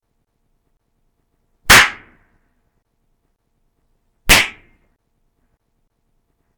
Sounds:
Explosion

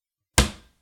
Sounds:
home sounds, Drawer open or close, Cupboard open or close

